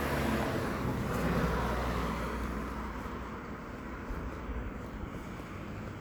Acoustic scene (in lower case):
street